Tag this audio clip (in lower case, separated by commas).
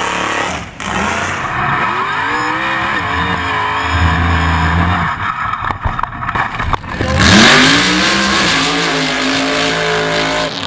car, vehicle, auto racing